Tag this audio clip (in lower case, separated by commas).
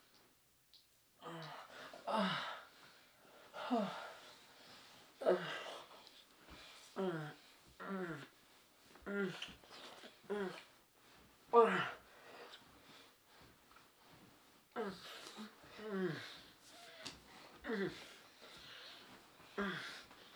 human voice